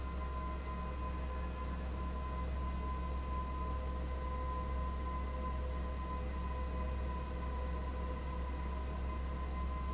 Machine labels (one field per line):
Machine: fan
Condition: abnormal